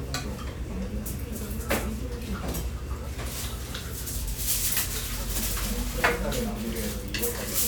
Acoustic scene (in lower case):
restaurant